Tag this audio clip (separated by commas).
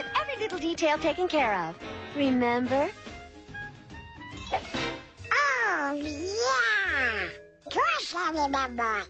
Music, Speech